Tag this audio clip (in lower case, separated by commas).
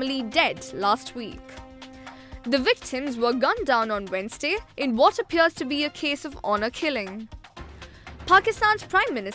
music, speech